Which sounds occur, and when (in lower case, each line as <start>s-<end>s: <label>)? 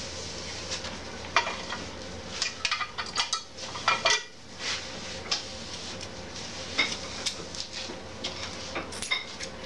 0.0s-9.6s: mechanisms
0.4s-0.9s: generic impact sounds
1.2s-2.1s: generic impact sounds
2.2s-3.4s: generic impact sounds
3.5s-4.3s: generic impact sounds
4.5s-6.0s: generic impact sounds
6.3s-7.9s: generic impact sounds
8.2s-9.5s: generic impact sounds
9.6s-9.6s: generic impact sounds